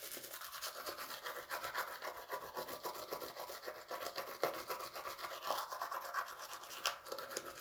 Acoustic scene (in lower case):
restroom